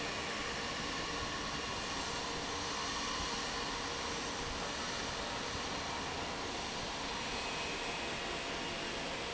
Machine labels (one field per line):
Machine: fan